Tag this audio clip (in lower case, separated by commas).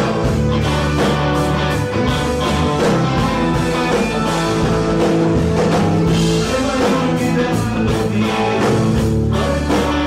music